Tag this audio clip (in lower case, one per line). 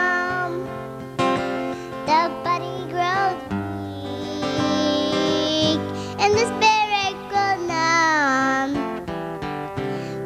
music